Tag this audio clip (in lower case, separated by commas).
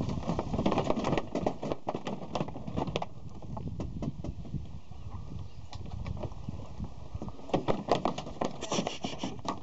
speech